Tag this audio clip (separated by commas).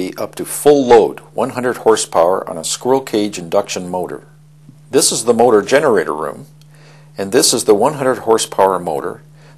Speech